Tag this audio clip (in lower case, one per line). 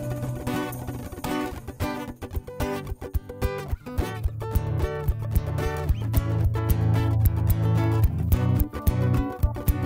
music